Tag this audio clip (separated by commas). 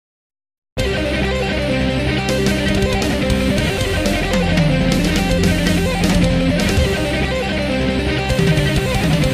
Music, Heavy metal